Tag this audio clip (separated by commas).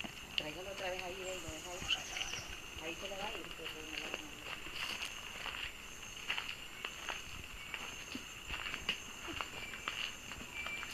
Speech